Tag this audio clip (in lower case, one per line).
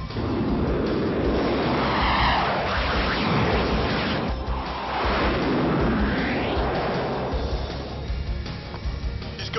airplane flyby